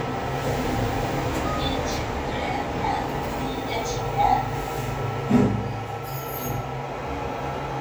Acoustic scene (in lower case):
elevator